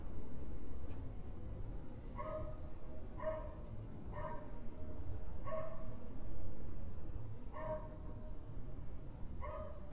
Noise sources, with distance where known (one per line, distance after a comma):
dog barking or whining, near